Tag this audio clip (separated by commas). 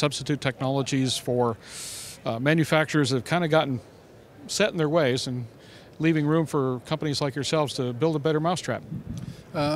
Speech